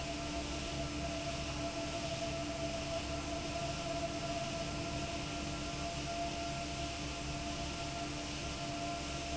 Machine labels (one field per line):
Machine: fan